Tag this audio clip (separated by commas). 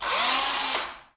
Engine, Drill, Tools, Power tool